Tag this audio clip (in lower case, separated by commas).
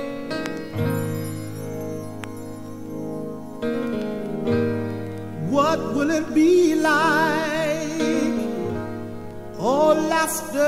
music